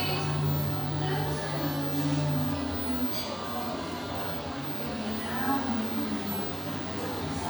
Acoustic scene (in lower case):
cafe